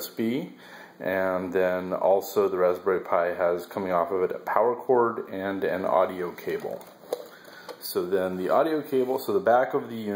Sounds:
speech

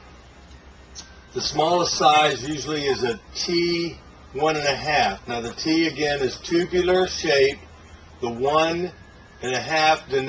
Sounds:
speech

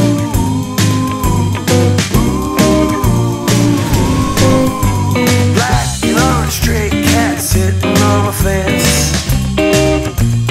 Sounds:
music
guitar
musical instrument
plucked string instrument

